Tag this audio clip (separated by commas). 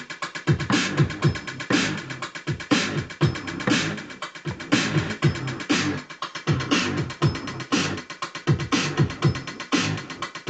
Scratching (performance technique), Music